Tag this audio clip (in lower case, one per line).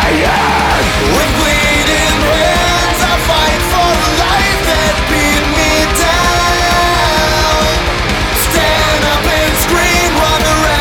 music
musical instrument
plucked string instrument
guitar
electric guitar